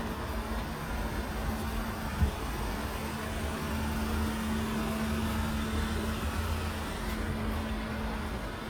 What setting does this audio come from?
residential area